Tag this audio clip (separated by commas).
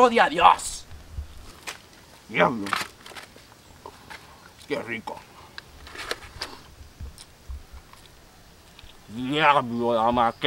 cap gun shooting